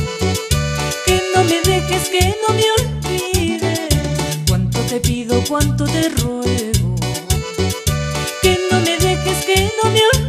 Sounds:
music

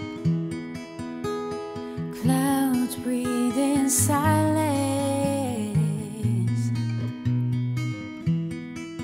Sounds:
music

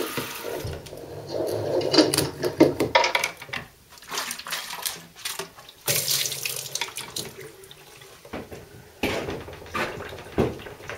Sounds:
sink (filling or washing)
water

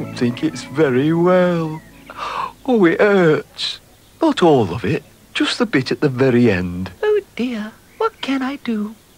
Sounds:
speech

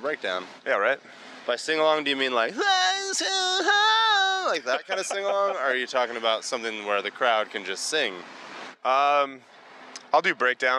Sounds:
speech

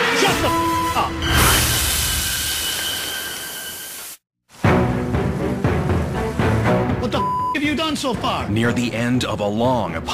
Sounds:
theme music

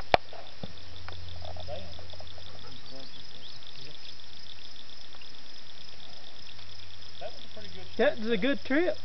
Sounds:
speech

